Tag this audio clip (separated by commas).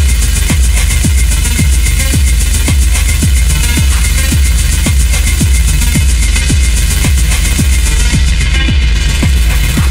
Electronic music, Music